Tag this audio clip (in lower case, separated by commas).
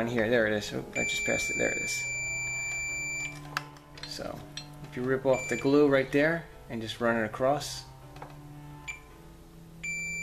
bleep